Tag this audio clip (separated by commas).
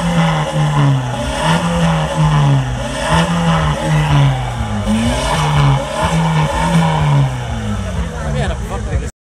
Speech